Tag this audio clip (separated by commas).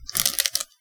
Crushing